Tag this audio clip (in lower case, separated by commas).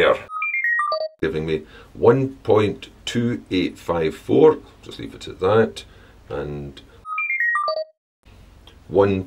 speech, inside a small room